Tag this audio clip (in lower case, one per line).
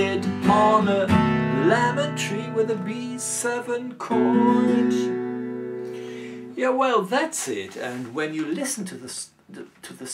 plucked string instrument
musical instrument
strum
guitar